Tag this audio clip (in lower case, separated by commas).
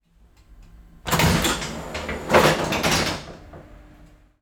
rail transport, train, vehicle